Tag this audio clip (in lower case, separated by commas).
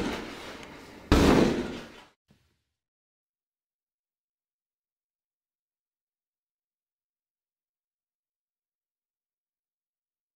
door